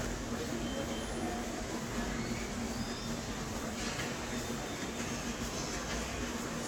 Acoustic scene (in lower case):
subway station